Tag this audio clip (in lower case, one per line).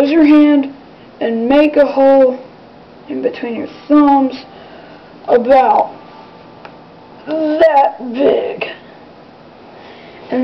speech
inside a small room